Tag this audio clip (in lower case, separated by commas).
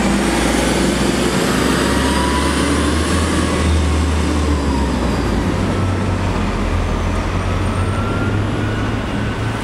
driving buses, bus